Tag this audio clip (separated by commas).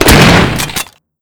Gunshot, Explosion